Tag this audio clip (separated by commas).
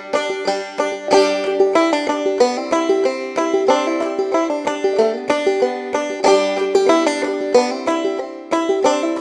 Music